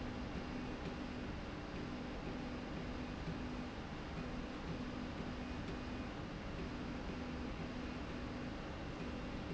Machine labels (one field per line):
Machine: slide rail